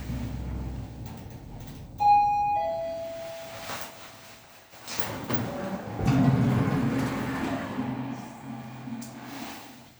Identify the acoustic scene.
elevator